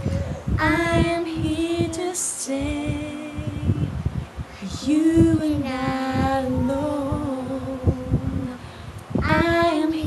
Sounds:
Child singing, Female singing

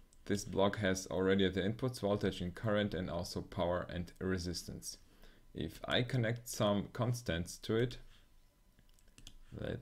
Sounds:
Speech, inside a small room

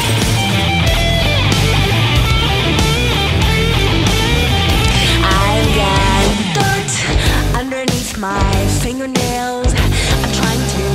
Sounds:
Music

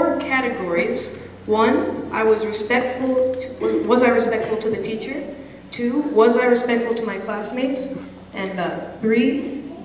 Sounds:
kid speaking, monologue, Speech

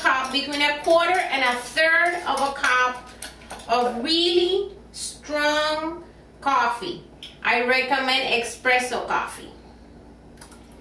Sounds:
Speech, inside a small room

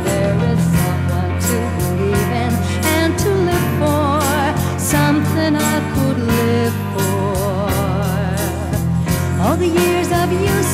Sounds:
Soul music, Music

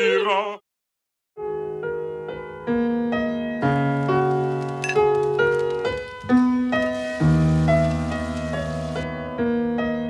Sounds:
outside, rural or natural, inside a small room, Music

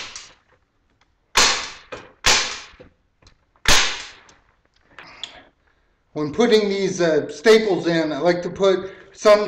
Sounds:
Speech, inside a small room

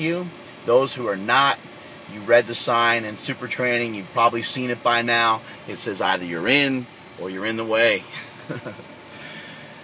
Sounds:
Speech

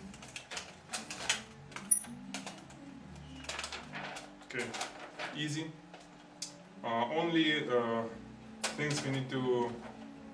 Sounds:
Speech, inside a small room, Music

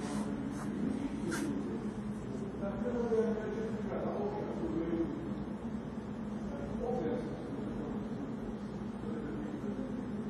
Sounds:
Speech

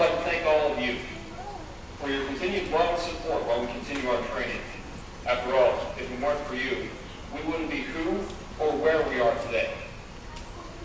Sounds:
Speech, monologue, Male speech

